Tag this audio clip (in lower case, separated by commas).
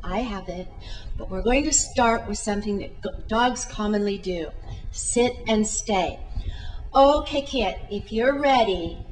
speech